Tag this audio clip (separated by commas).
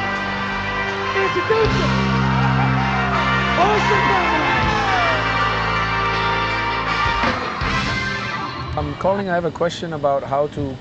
Music, Speech